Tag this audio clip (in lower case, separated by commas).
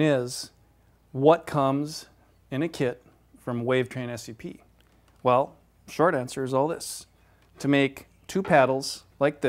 speech